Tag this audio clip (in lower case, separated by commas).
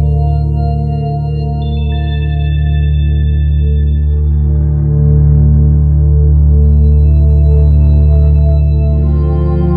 soundtrack music, music, video game music